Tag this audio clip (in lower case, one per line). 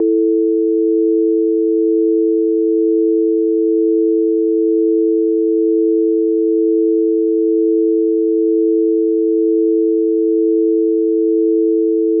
telephone
alarm